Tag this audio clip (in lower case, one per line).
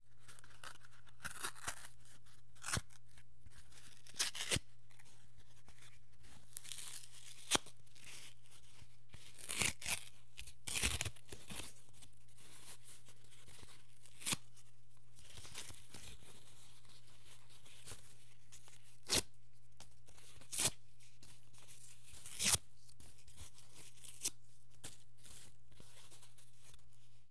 tearing